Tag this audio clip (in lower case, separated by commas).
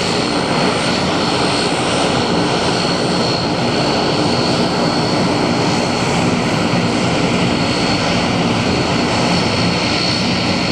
vehicle, heavy engine (low frequency), engine, aircraft